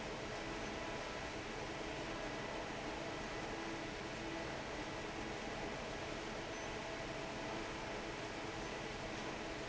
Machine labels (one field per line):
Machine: fan